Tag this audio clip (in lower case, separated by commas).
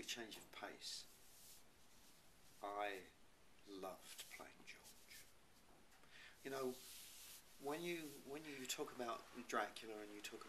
speech